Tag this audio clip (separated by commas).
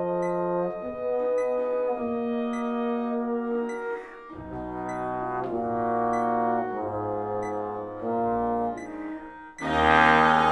Music, Trombone, Trumpet